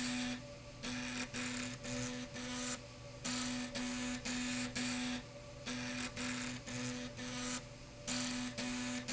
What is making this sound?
slide rail